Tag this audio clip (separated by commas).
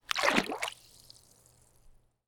Splash, Water, Liquid